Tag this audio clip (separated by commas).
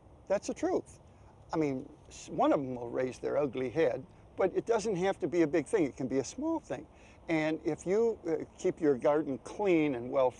Speech